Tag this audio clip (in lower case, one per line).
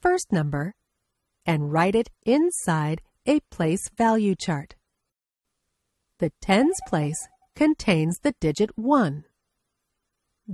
speech